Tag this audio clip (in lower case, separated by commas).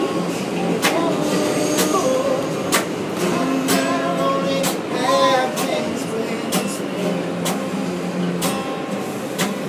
music